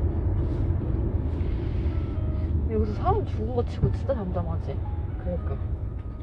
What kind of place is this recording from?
car